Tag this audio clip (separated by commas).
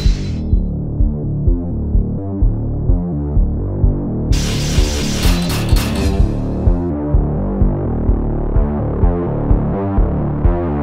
Music